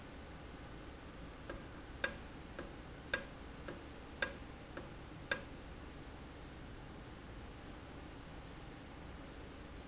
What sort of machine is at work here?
valve